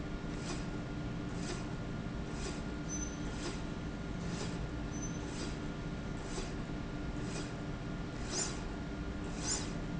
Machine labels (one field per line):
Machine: slide rail